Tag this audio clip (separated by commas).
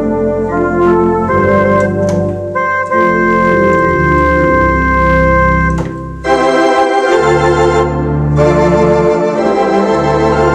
Organ, Music